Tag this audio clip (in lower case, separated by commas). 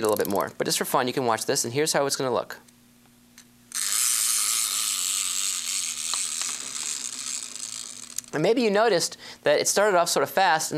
electric razor